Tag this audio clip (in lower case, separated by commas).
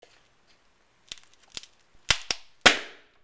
crack